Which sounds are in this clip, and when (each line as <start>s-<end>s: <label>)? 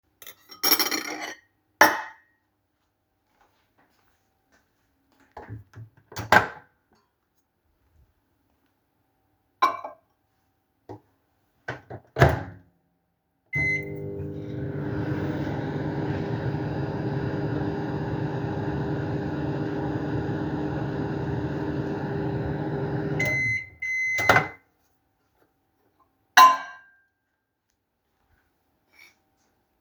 0.1s-2.3s: cutlery and dishes
3.1s-5.3s: footsteps
5.5s-6.8s: microwave
9.5s-10.1s: cutlery and dishes
11.5s-12.7s: microwave
13.5s-24.7s: microwave
26.3s-27.0s: cutlery and dishes